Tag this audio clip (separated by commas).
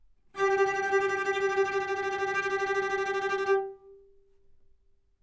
Bowed string instrument, Music, Musical instrument